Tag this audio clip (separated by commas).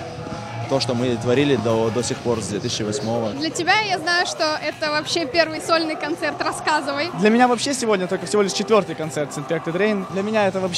Speech, Music